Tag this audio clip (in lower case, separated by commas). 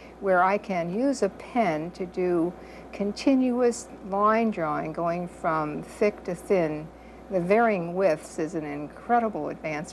speech